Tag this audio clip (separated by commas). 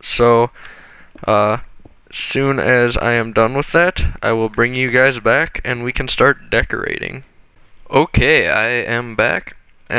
Speech